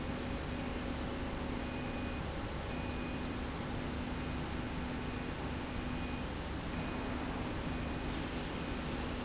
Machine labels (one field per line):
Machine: slide rail